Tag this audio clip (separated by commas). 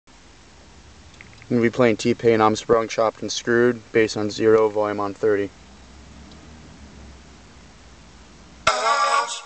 Music, Speech